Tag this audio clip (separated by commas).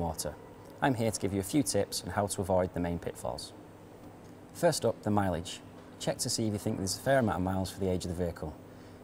Speech